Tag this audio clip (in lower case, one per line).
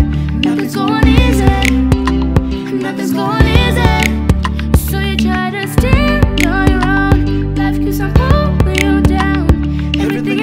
music